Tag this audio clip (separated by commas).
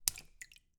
Water, Raindrop, splatter, Liquid, Rain